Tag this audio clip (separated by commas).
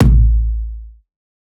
Music, Musical instrument, Drum, Bass drum, Percussion